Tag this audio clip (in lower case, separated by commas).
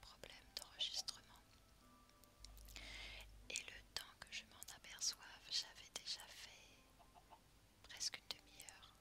whispering